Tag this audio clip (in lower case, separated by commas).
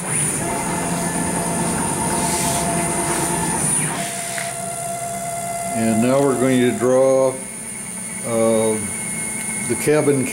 inside a small room, speech